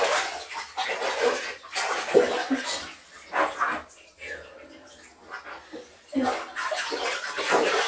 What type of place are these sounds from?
restroom